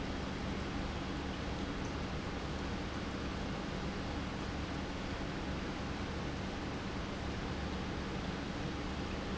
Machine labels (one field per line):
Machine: pump